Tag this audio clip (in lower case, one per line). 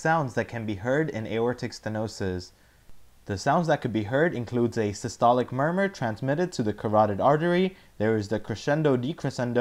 speech